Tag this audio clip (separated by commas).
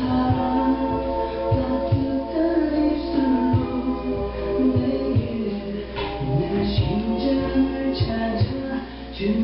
Walk, Music